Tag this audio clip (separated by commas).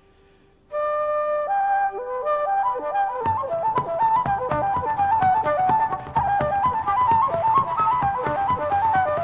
playing flute